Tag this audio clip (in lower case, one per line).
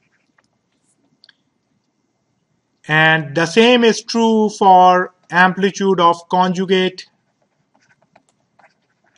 speech